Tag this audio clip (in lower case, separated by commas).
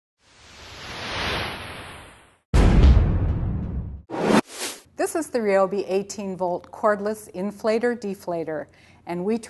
music, speech